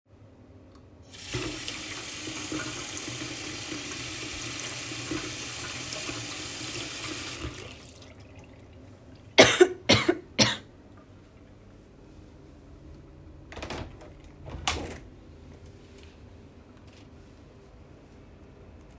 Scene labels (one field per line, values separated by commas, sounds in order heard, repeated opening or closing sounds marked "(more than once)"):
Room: kitchen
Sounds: running water, window